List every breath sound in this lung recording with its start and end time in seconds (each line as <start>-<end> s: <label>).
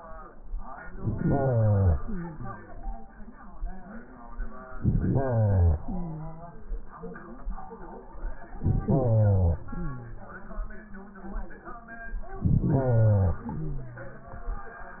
0.94-1.99 s: inhalation
1.98-3.08 s: exhalation
4.77-5.81 s: inhalation
5.80-7.01 s: exhalation
8.56-9.60 s: inhalation
9.62-10.49 s: exhalation
12.38-13.38 s: inhalation
13.38-14.38 s: exhalation